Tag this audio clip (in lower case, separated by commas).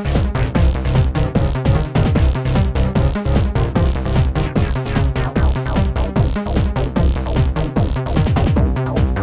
music, theme music